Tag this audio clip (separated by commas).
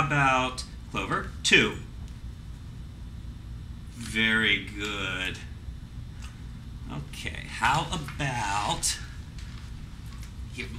Speech